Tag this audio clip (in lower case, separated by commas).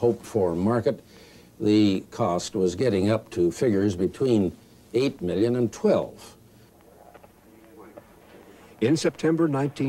speech